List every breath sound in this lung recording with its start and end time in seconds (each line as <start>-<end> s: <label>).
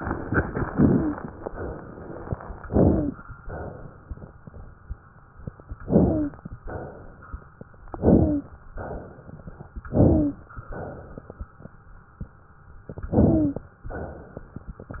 0.68-1.35 s: inhalation
0.68-1.35 s: wheeze
1.44-2.30 s: exhalation
2.64-3.30 s: inhalation
2.64-3.30 s: wheeze
3.42-4.27 s: exhalation
5.86-6.53 s: inhalation
5.86-6.53 s: wheeze
6.62-7.38 s: exhalation
7.93-8.60 s: inhalation
7.93-8.60 s: wheeze
8.82-9.58 s: exhalation
9.89-10.55 s: inhalation
9.89-10.55 s: wheeze
10.68-11.35 s: exhalation
13.11-13.78 s: inhalation
13.11-13.78 s: wheeze
13.95-14.61 s: exhalation